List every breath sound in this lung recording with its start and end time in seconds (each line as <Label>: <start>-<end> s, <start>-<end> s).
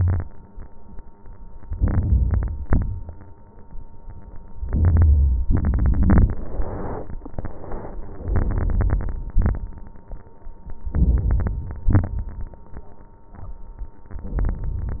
Inhalation: 1.70-2.63 s, 4.60-5.44 s, 8.28-9.12 s, 10.88-11.89 s, 14.17-15.00 s
Exhalation: 2.63-3.31 s, 5.47-6.32 s, 9.30-9.91 s, 11.89-12.59 s
Crackles: 5.48-6.31 s, 8.27-9.10 s, 9.29-9.95 s